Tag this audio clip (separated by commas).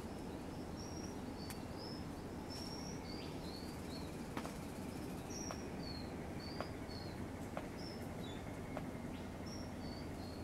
cuckoo bird calling